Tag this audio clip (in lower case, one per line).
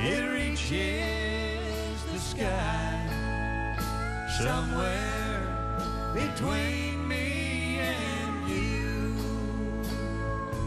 country
music
singing